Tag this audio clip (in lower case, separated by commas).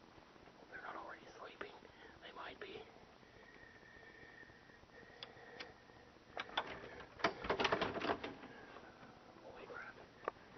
inside a small room, speech